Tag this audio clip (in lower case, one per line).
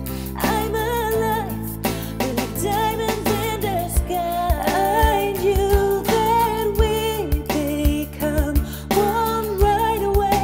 music